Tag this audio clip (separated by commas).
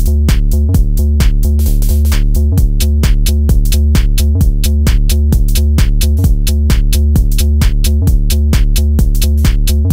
Electronic music, Music, Techno